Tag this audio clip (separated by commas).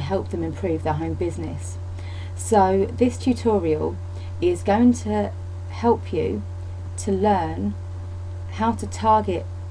Speech